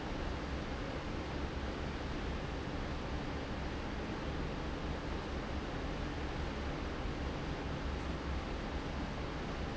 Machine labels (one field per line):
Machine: fan